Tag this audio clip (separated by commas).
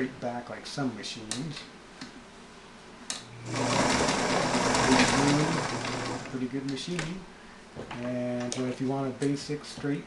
Speech, inside a small room, Sewing machine